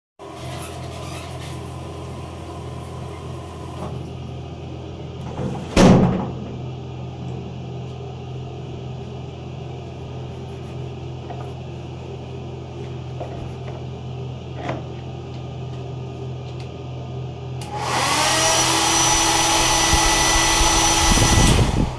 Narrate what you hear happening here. I turned off the shower, opened the shower door, used a towel, and turned on the hair dryer, all this time, there was the ventilation system running.